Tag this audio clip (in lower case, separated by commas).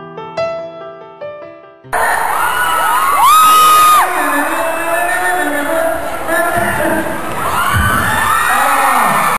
music, speech